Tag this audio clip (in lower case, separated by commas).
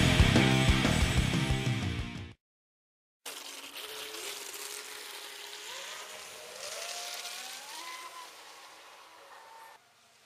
exciting music, music